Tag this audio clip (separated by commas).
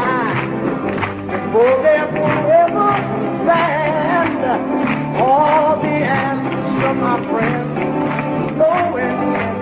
Music